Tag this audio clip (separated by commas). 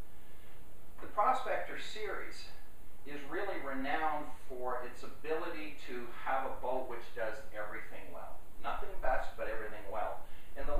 Speech